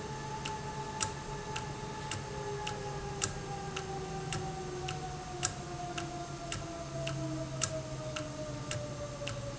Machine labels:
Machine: valve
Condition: normal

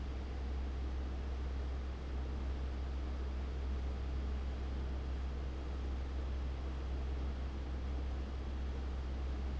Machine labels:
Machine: fan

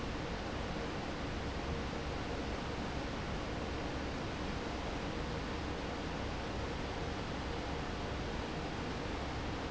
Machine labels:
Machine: fan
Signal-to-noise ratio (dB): -6 dB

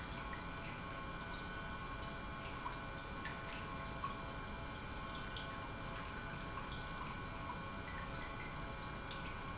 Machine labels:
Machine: pump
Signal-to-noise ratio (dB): 6 dB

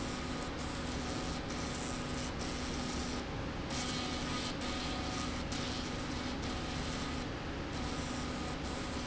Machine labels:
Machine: slide rail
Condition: abnormal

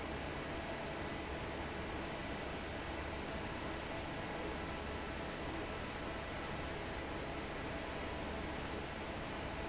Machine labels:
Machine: fan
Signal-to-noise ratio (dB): 0 dB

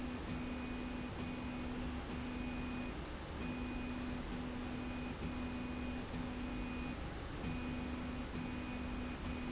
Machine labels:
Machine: slide rail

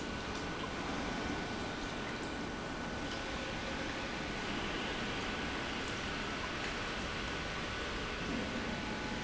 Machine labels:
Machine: pump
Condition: normal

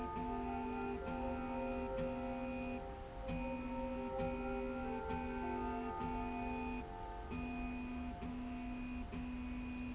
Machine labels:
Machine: slide rail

